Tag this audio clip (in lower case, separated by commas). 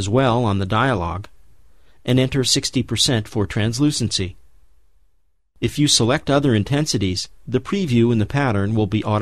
speech